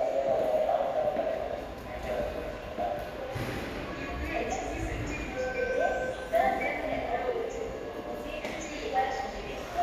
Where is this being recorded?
in a subway station